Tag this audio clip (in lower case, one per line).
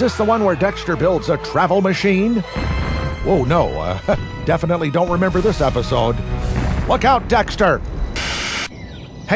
speech
explosion
burst
music